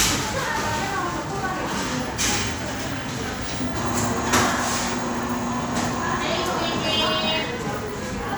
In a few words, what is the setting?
crowded indoor space